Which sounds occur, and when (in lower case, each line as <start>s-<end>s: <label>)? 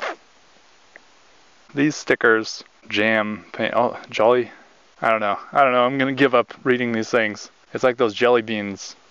0.0s-0.1s: human voice
0.0s-9.1s: wind
0.9s-1.0s: tap
1.6s-2.6s: man speaking
2.8s-3.4s: man speaking
3.5s-4.5s: man speaking
4.0s-4.1s: tick
5.0s-5.4s: man speaking
5.5s-6.5s: man speaking
6.7s-7.4s: man speaking
7.7s-8.9s: man speaking